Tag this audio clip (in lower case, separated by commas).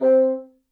musical instrument, wind instrument, music